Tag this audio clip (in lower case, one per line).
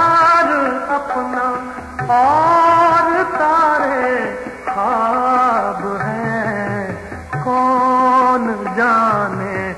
music
radio